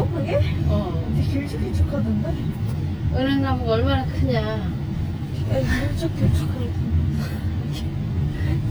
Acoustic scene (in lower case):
car